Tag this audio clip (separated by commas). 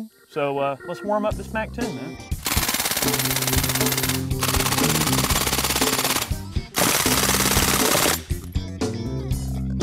machine gun shooting